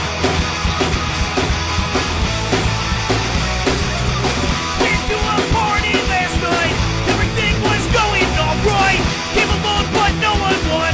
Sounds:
Exciting music, Music

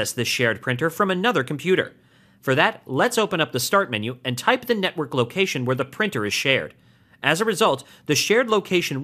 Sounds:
Speech

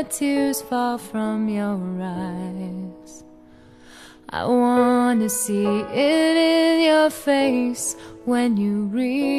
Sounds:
Music

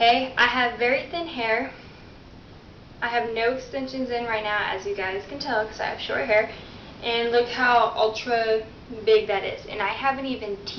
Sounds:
Speech

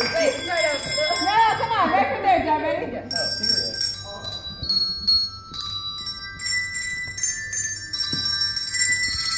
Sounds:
Speech, Music, Jingle bell

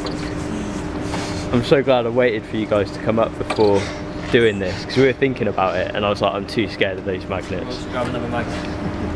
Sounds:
Speech

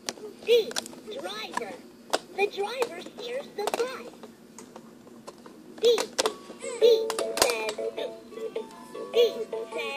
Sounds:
Music, Speech

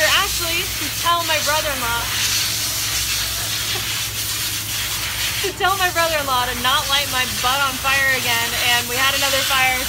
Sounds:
Speech

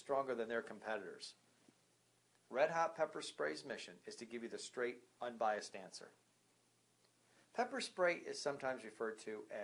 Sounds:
Speech

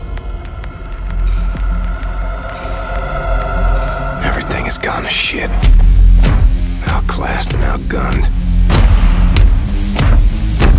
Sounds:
Speech, Music

